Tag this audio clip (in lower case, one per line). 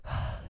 respiratory sounds
breathing